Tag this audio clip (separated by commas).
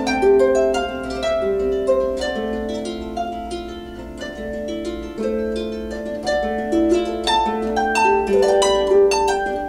playing harp